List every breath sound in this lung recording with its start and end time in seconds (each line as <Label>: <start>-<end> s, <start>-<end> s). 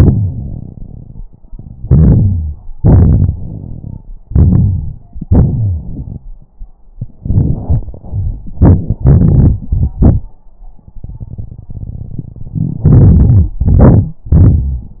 Inhalation: 1.82-2.58 s, 4.27-5.02 s, 13.60-14.22 s
Exhalation: 2.77-4.00 s, 5.25-6.20 s, 14.27-15.00 s
Wheeze: 5.25-6.07 s
Crackles: 1.82-2.58 s, 2.77-4.00 s, 4.27-5.02 s, 7.22-8.02 s